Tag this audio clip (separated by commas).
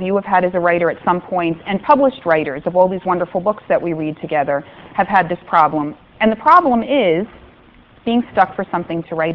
Speech